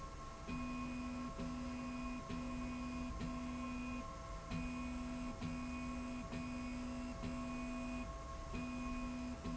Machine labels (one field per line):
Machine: slide rail